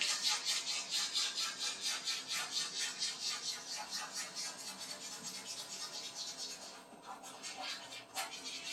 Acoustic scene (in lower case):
restroom